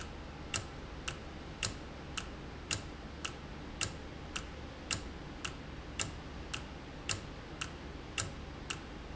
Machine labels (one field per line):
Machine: valve